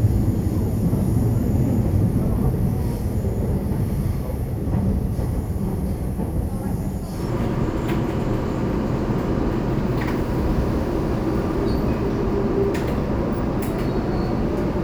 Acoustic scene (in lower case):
subway train